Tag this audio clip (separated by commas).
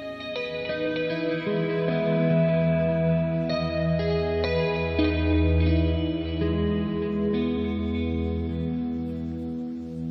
Music